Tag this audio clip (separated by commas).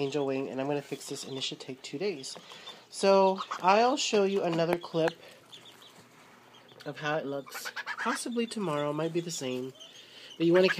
Fowl, Goose